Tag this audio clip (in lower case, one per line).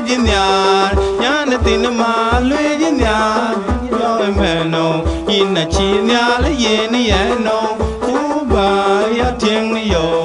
music